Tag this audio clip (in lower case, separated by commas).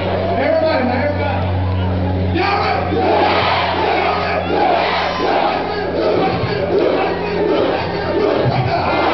crowd, speech